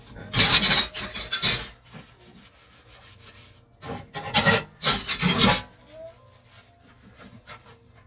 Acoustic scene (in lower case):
kitchen